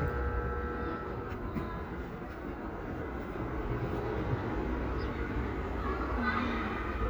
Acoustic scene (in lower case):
residential area